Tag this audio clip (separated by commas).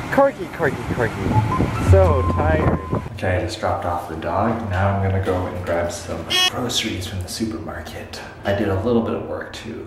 Wind